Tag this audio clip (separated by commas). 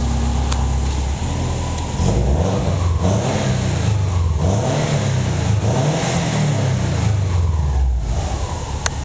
Car, vroom, Medium engine (mid frequency), Vehicle